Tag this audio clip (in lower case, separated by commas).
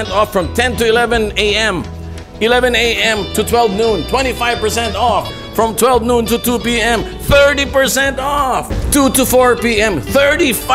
speech, musical instrument, music